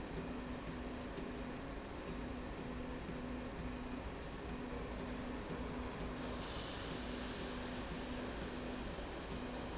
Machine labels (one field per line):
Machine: slide rail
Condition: normal